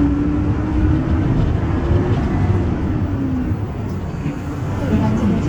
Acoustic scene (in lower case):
bus